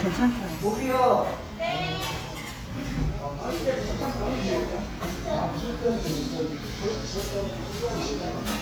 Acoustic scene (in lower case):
restaurant